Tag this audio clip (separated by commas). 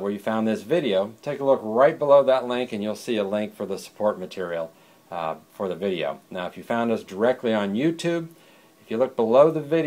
Speech